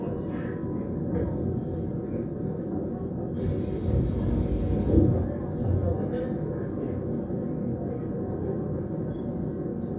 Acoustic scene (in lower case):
subway train